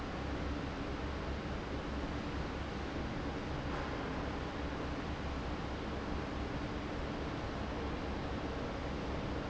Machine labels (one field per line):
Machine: fan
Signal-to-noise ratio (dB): -6 dB